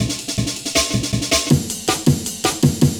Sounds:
percussion, musical instrument, music, drum kit

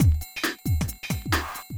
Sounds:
drum kit, musical instrument, percussion, music

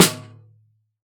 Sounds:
snare drum, musical instrument, music, percussion, drum

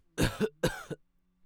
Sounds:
respiratory sounds, cough

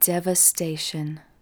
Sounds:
speech, female speech, human voice

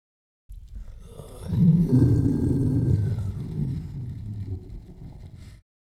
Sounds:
wild animals, animal

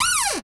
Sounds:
cupboard open or close, home sounds

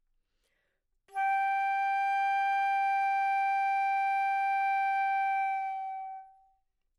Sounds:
wind instrument, music, musical instrument

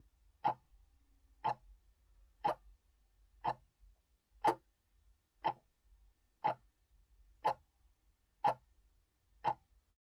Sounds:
tick-tock, clock, mechanisms

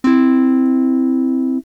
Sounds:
strum, musical instrument, acoustic guitar, plucked string instrument, music, guitar

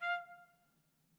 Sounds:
brass instrument, music, musical instrument, trumpet

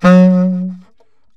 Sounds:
musical instrument, wind instrument, music

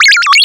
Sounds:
alarm, telephone, ringtone

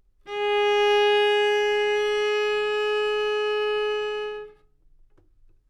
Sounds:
bowed string instrument, music, musical instrument

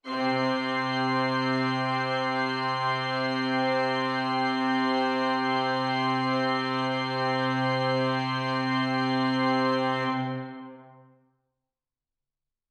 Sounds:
musical instrument, music, organ, keyboard (musical)

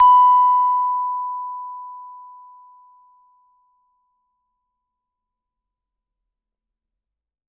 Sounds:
percussion, musical instrument, music, mallet percussion

